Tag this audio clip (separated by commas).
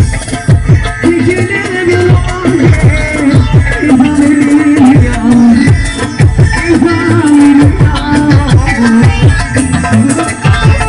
Music